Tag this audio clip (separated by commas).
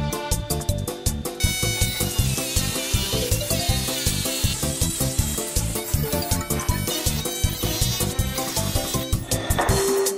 firing muskets